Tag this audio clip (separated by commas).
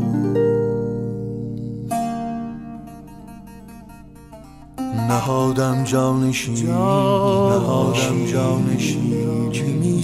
Music